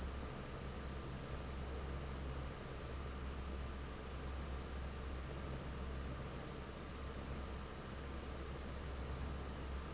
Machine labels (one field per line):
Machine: fan